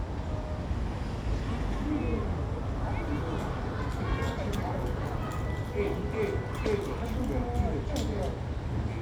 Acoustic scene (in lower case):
residential area